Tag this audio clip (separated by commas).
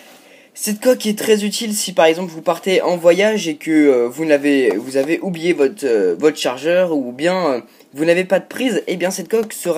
Speech